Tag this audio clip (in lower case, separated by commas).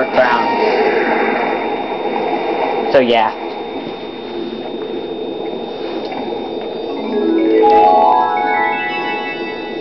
xylophone